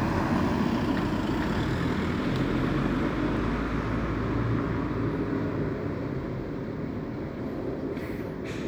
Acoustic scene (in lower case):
residential area